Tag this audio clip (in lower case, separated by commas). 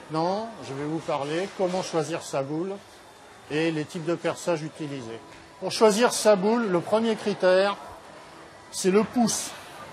bowling impact